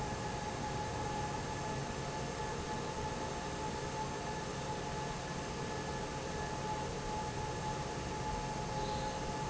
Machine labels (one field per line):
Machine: fan